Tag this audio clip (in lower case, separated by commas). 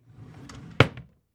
drawer open or close, domestic sounds